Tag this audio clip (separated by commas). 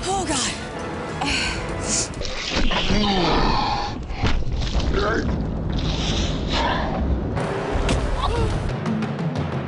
Music, Speech